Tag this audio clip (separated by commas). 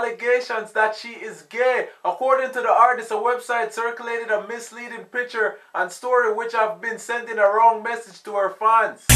Music, Speech